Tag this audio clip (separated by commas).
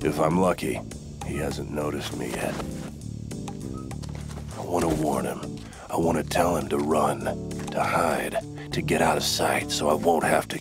Music, Speech